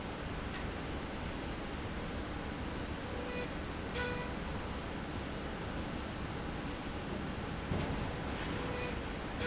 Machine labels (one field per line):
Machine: slide rail